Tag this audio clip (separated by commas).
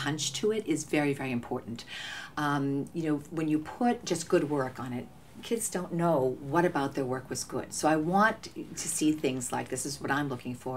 Speech